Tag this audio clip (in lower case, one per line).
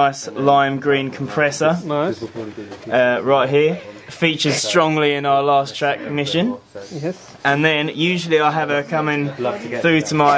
speech